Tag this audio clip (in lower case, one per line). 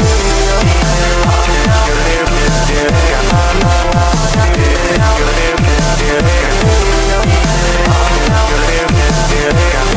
music